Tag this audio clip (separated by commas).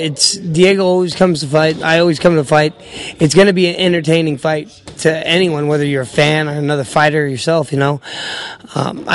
inside a small room, Speech